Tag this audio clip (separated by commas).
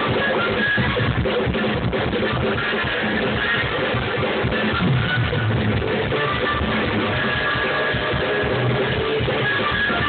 Music